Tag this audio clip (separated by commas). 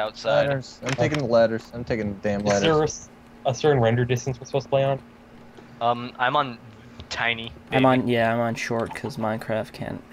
Speech